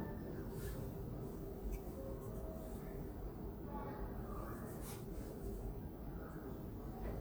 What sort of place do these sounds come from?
elevator